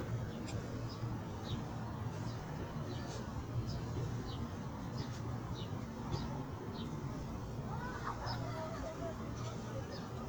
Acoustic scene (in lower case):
park